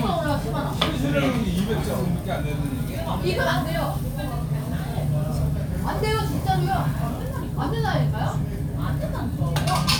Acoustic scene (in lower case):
crowded indoor space